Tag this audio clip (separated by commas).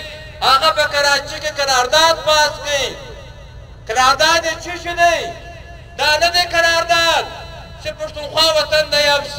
monologue, Speech, Male speech